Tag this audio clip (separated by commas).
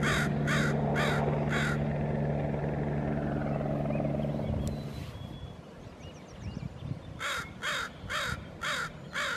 crow cawing